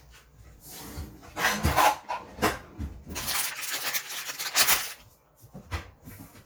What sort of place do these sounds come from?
kitchen